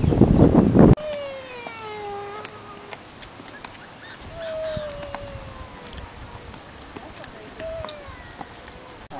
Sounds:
Speech

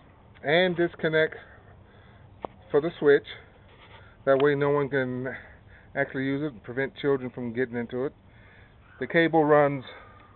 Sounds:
Speech

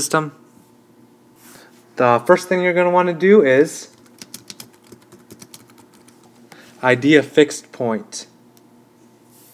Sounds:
Typing, Computer keyboard, Speech

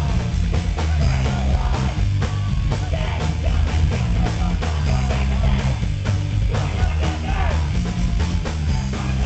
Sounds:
Yell, Bellow, Music

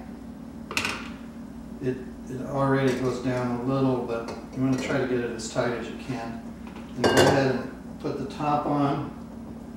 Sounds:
dishes, pots and pans

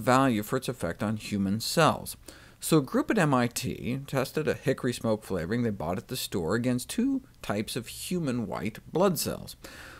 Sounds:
Speech

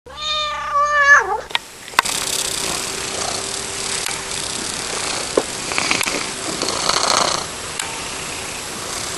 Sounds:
Domestic animals, Animal, Purr, cat purring, Cat

